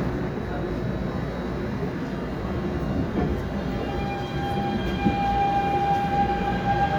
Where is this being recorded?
on a subway train